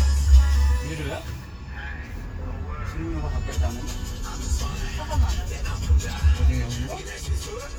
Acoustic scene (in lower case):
car